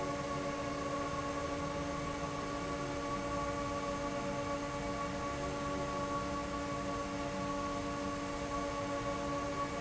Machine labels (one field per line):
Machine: fan